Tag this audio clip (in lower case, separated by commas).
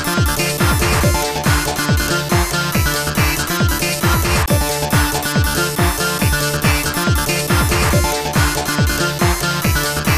music